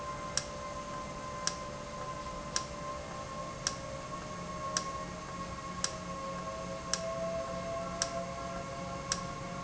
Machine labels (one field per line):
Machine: valve